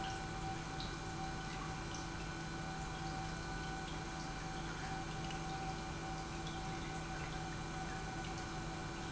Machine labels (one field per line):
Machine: pump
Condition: normal